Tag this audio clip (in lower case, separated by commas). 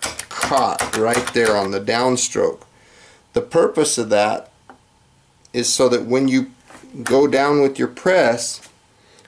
inside a small room, speech